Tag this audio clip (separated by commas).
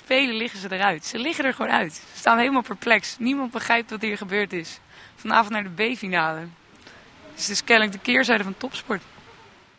Speech